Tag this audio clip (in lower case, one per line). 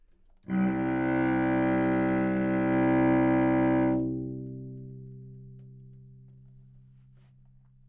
bowed string instrument
music
musical instrument